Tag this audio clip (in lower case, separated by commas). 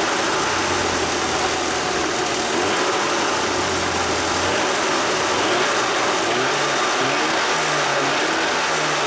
medium engine (mid frequency)